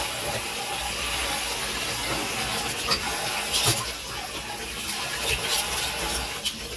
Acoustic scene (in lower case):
kitchen